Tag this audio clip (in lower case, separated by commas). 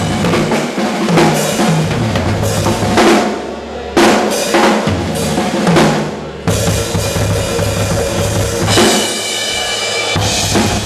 country, music, speech